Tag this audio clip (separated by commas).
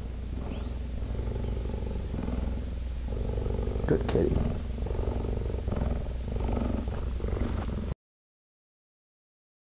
cheetah chirrup